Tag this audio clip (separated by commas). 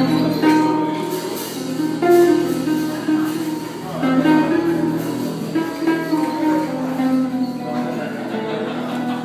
Strum, Plucked string instrument, Guitar, Music, Acoustic guitar, Speech, Musical instrument